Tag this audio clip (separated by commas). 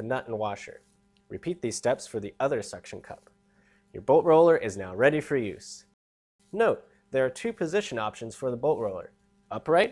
Speech